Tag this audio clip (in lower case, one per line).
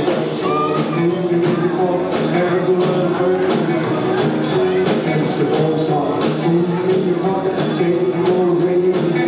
music
rock and roll